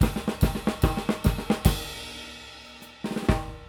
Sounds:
music, musical instrument, drum kit, percussion, drum

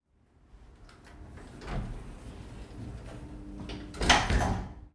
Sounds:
door, domestic sounds, sliding door, slam

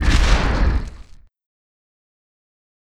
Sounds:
explosion, boom

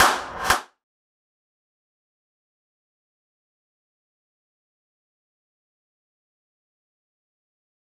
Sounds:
clapping, hands

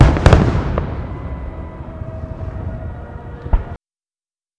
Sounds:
explosion, fireworks

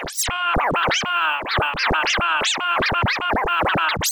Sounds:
musical instrument, scratching (performance technique), music

